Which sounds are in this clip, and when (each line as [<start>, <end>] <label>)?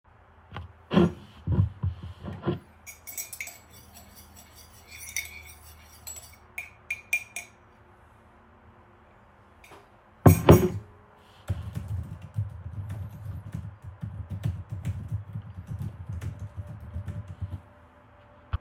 [0.84, 7.71] cutlery and dishes
[9.75, 10.98] cutlery and dishes
[11.43, 17.68] keyboard typing